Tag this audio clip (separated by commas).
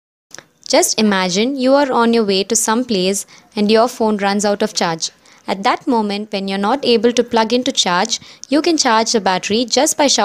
Speech